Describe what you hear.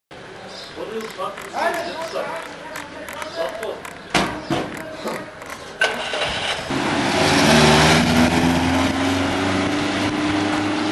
Men talking and a car driving off